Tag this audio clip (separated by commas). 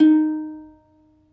Plucked string instrument, Musical instrument, Music